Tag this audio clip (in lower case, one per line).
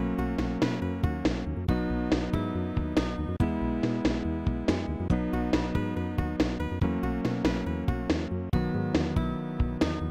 music
video game music